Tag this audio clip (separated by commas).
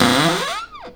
home sounds, Cupboard open or close